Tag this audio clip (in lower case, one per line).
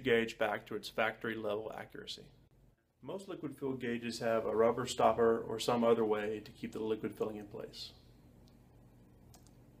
speech